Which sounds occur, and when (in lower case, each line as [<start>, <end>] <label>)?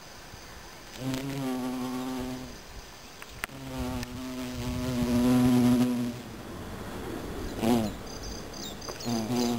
[0.00, 9.55] insect
[0.00, 9.55] wind
[0.88, 1.48] generic impact sounds
[0.99, 2.53] buzz
[1.12, 1.18] tick
[3.20, 3.25] tick
[3.40, 3.49] tick
[3.47, 6.13] buzz
[3.99, 4.06] tick
[5.79, 5.87] tick
[7.53, 7.78] generic impact sounds
[7.58, 7.92] buzz
[7.88, 9.55] tweet
[8.86, 8.93] tick
[9.06, 9.55] buzz